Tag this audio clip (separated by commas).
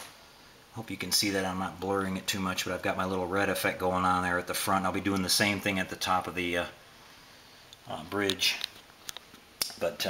Speech, inside a small room